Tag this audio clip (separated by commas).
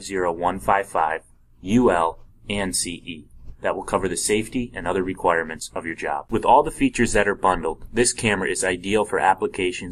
Speech